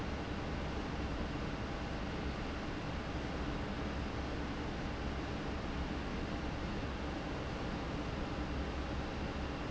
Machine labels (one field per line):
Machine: fan